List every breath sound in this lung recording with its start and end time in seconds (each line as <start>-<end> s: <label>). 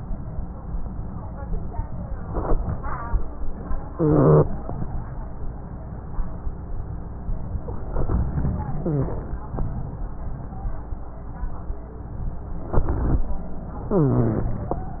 3.89-4.50 s: wheeze
8.80-9.22 s: wheeze
13.91-14.57 s: wheeze